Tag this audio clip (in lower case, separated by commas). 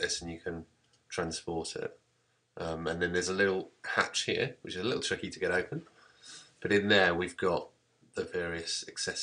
speech